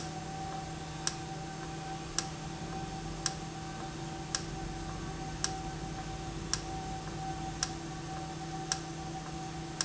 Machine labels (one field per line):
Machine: valve